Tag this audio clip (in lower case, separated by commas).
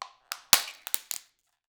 crushing